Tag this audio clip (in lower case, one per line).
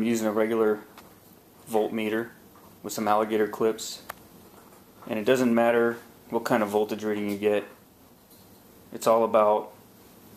speech
inside a small room